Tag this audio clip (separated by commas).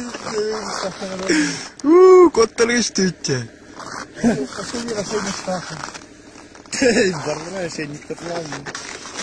Speech